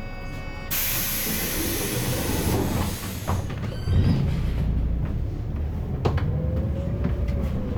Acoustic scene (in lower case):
bus